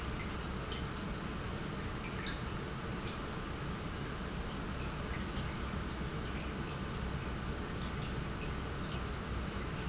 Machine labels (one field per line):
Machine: pump